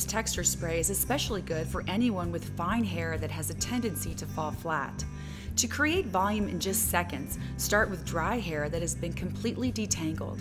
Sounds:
Music, Speech

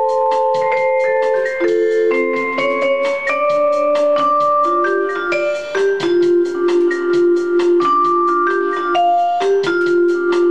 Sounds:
playing marimba, xylophone, Glockenspiel, Mallet percussion

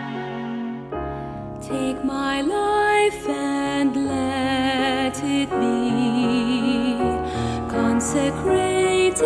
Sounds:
Music

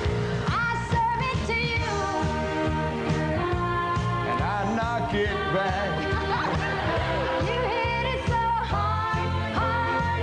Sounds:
Music

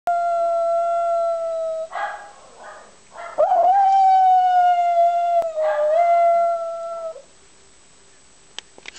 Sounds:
pets, Dog, Animal, Bark

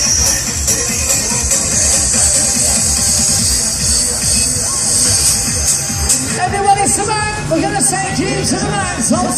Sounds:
Music, Speech

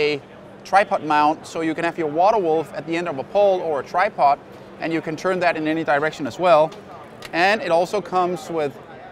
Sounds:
Speech

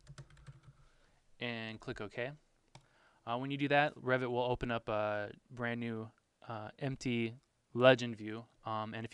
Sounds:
Speech

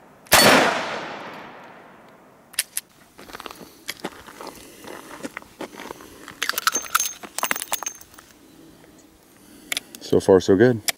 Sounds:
Gunshot

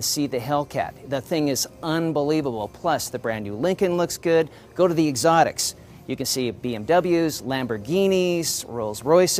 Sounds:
Speech

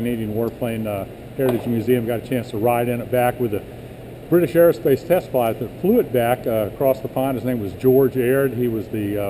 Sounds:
Speech

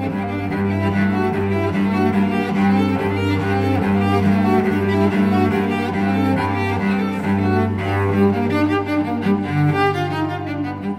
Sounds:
Bowed string instrument, Cello, Music

